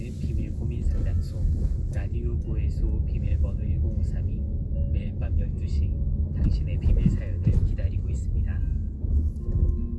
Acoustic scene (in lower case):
car